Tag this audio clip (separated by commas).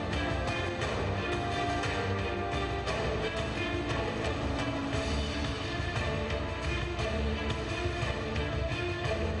Music